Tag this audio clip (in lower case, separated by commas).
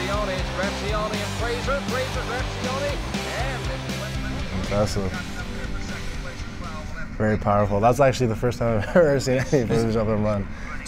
music, speech